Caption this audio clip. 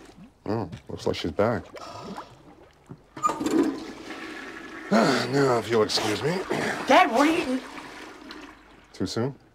Human speech with toilet flushing